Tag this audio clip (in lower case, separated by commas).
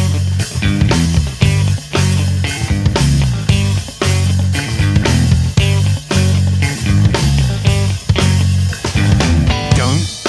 music